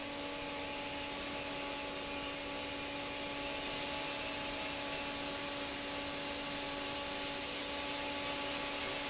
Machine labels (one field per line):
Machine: fan